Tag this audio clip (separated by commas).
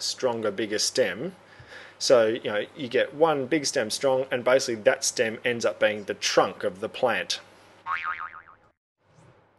Speech, Boing